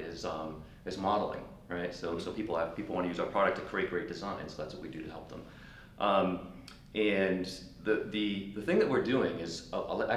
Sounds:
Speech

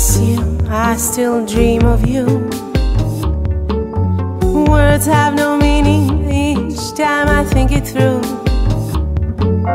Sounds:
Tender music, Music

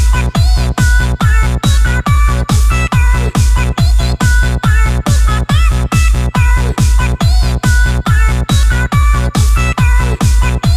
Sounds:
Techno, Music

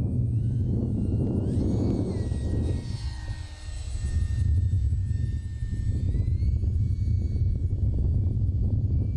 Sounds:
Aircraft, airplane

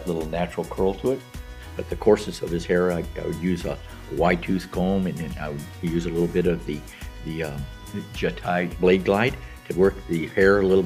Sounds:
Speech, Music

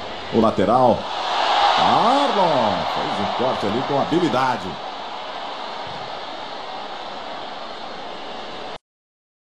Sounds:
Speech

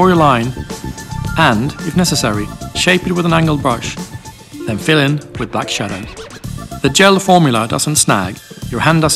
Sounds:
Speech, Music

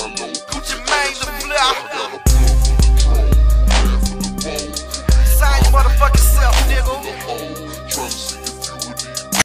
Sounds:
Music

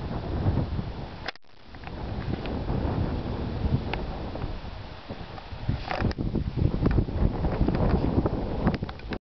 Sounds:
outside, rural or natural

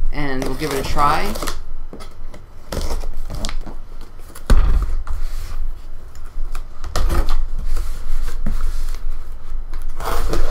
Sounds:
Speech

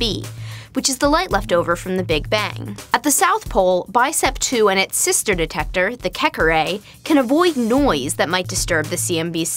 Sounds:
Music, Speech

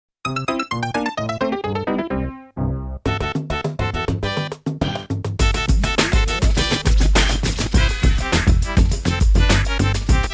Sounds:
Soundtrack music, Music, Television

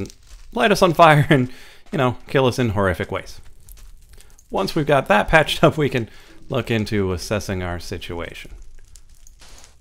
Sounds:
Speech

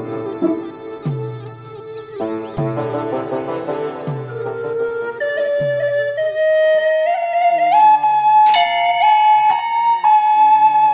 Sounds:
Flute

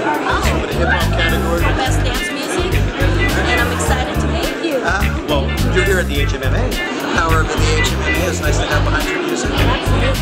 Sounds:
Music, Speech

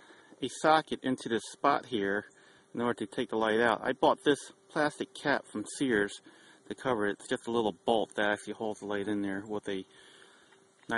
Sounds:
outside, rural or natural, Speech

